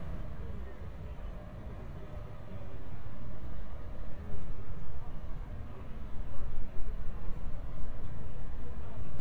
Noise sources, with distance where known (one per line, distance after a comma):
person or small group talking, far